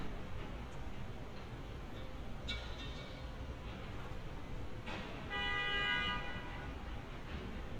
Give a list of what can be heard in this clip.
car horn